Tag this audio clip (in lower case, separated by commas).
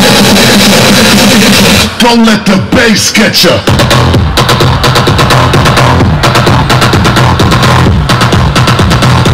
pop music, dance music, music